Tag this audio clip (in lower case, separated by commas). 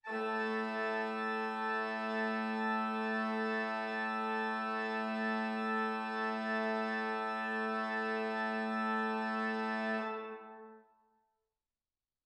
music, keyboard (musical), musical instrument, organ